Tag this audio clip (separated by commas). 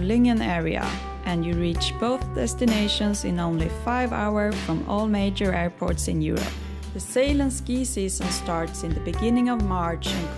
Music, Speech